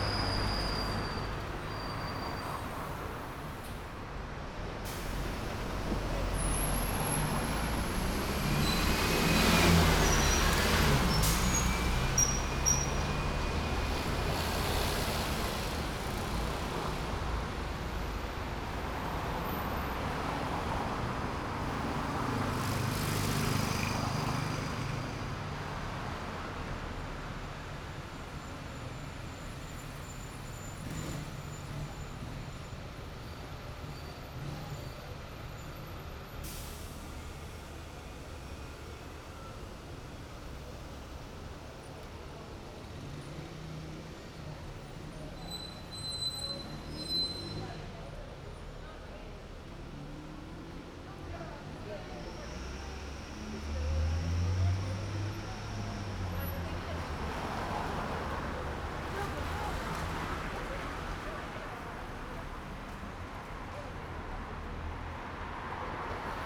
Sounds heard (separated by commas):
bus engine idling, motorcycle, bus compressor, car, bus brakes, people talking, bus engine accelerating, bus wheels rolling, car wheels rolling, bus, car engine accelerating, motorcycle engine accelerating